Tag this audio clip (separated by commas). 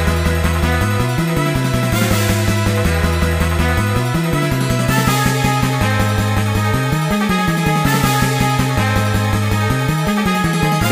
Soundtrack music, Video game music, Music